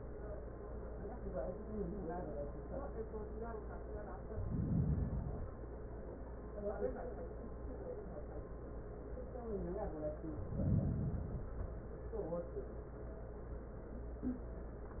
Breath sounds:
Inhalation: 4.21-5.71 s, 10.32-11.82 s

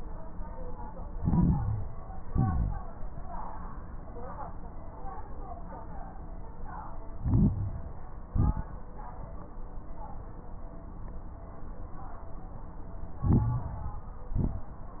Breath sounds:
Inhalation: 1.10-1.99 s, 7.12-7.79 s, 13.21-14.10 s
Exhalation: 2.20-2.87 s, 8.28-8.74 s, 14.33-15.00 s
Crackles: 1.10-1.99 s, 2.20-2.87 s, 7.12-7.79 s, 8.28-8.74 s, 13.21-14.10 s, 14.33-15.00 s

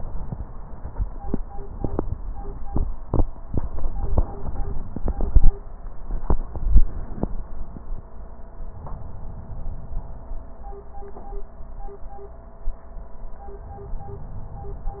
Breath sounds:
Inhalation: 8.60-10.24 s

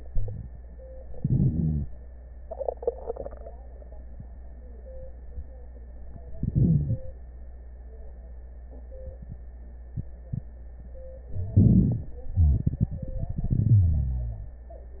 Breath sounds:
Inhalation: 1.16-1.88 s, 6.39-7.00 s, 11.56-12.13 s
Exhalation: 12.39-14.59 s
Wheeze: 1.16-1.88 s, 6.61-7.00 s, 13.62-14.53 s
Crackles: 11.56-12.13 s

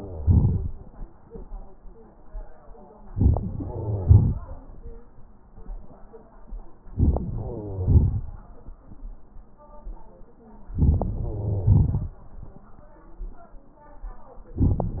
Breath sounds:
Inhalation: 3.12-3.54 s, 6.81-7.62 s, 10.71-11.35 s
Exhalation: 3.55-5.04 s, 7.63-8.69 s, 11.34-12.70 s
Crackles: 3.10-3.53 s, 3.56-4.36 s, 6.80-7.60 s, 7.61-8.19 s, 10.71-11.35 s, 11.36-12.06 s

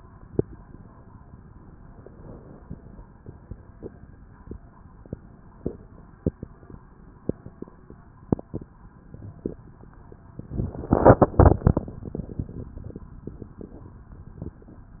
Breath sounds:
Inhalation: 1.59-3.17 s

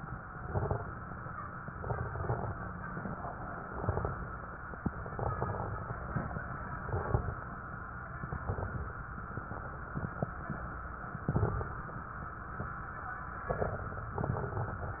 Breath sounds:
Inhalation: 0.32-1.12 s, 3.55-4.25 s, 4.97-5.88 s, 6.75-7.55 s, 8.25-9.05 s, 11.23-12.03 s, 13.49-14.21 s
Exhalation: 1.61-2.54 s, 6.07-6.55 s, 14.25-15.00 s
Crackles: 0.32-1.12 s, 1.61-2.54 s, 3.55-4.25 s, 4.97-5.88 s, 6.07-6.55 s, 6.75-7.55 s, 8.25-9.05 s, 11.23-12.03 s, 13.49-14.21 s, 14.25-15.00 s

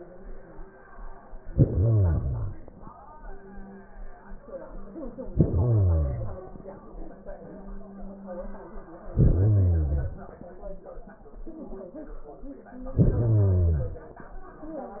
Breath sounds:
Inhalation: 1.50-3.00 s, 5.24-6.59 s, 9.08-10.43 s, 12.70-14.05 s

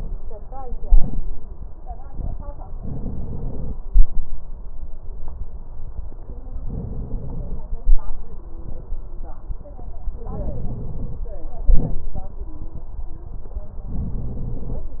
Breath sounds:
Inhalation: 2.68-3.75 s, 6.62-7.70 s, 10.26-11.34 s, 13.89-14.96 s

